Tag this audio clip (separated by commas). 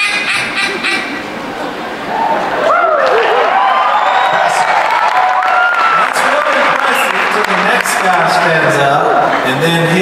Speech, Quack